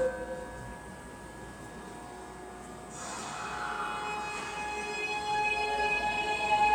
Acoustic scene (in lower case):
subway station